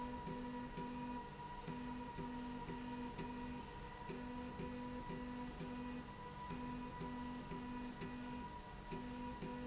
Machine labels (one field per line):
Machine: slide rail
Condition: normal